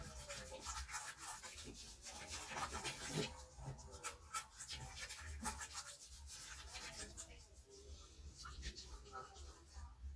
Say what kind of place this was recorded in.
restroom